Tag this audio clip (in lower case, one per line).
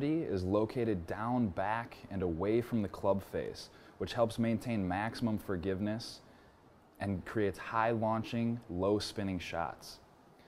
speech